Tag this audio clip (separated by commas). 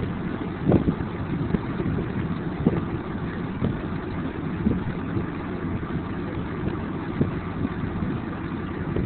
wind noise, Wind noise (microphone)